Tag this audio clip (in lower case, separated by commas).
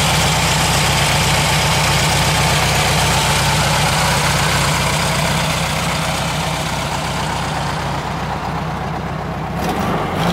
vehicle, idling